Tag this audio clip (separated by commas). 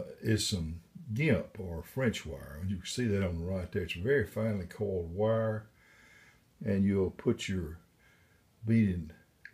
Speech